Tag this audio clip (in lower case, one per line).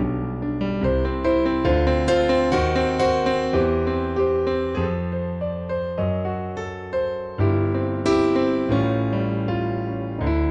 music